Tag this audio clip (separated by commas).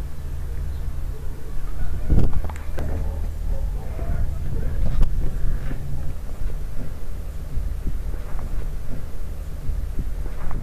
Speech